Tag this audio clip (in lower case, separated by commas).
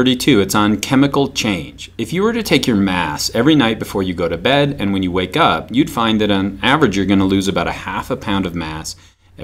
narration, speech